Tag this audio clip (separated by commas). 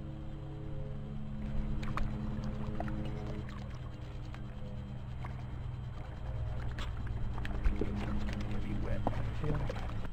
Speech